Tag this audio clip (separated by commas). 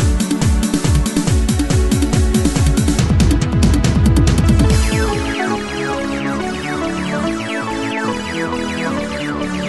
Techno, Music, Electronic music